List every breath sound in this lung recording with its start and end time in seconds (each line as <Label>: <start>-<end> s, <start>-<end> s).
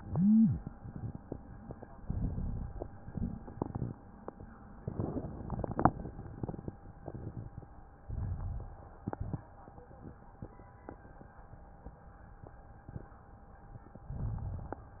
Inhalation: 1.96-3.01 s, 8.04-9.01 s, 14.13-15.00 s
Exhalation: 3.01-3.94 s, 9.08-9.53 s